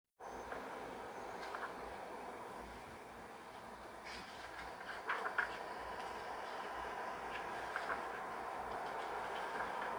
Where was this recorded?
on a street